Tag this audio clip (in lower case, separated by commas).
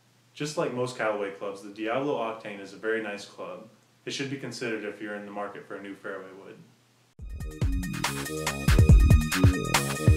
music, speech